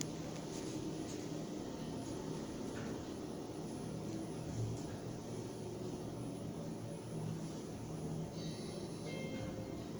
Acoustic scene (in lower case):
elevator